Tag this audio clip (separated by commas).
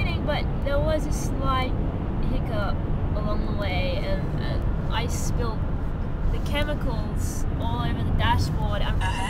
Speech